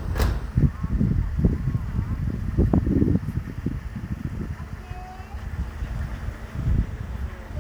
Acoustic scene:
residential area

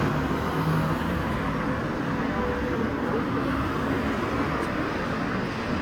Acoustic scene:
street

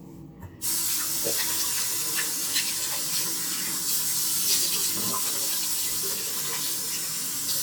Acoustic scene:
restroom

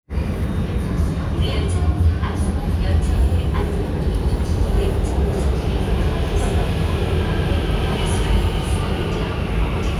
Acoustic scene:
subway train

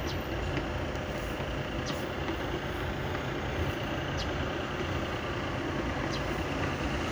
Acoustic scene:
street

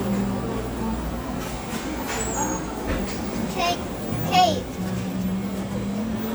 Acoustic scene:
cafe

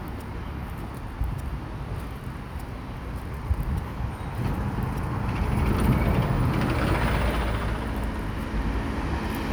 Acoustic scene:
street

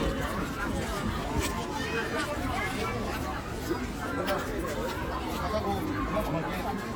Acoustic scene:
park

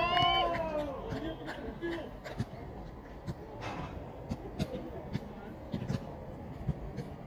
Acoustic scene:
park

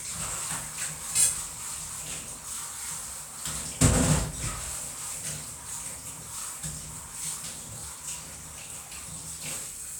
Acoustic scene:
kitchen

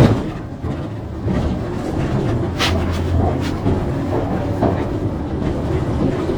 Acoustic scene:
bus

